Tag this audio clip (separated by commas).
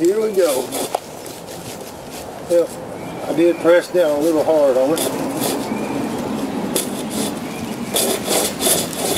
Speech